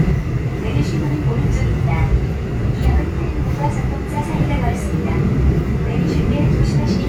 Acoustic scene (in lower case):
subway train